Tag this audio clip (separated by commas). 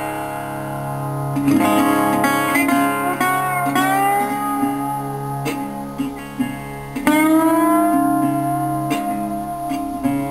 Musical instrument, Music, Plucked string instrument, Blues, Guitar